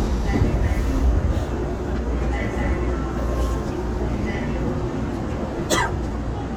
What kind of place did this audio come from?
subway train